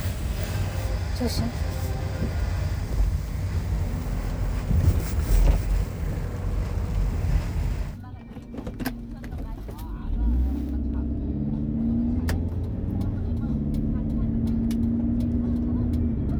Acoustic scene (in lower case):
car